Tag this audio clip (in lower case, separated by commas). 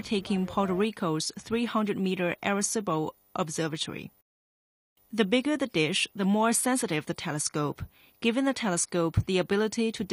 speech